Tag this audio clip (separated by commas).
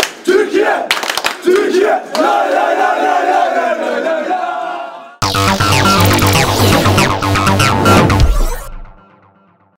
Speech, Music